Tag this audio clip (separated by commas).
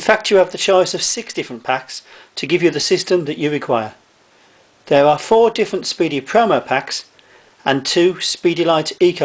Speech, inside a small room